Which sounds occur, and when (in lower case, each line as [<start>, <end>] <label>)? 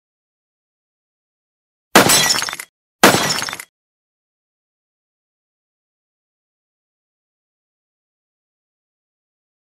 [1.89, 2.65] shatter
[2.99, 3.65] shatter